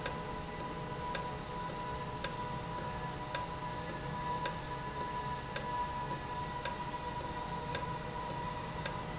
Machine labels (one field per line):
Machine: valve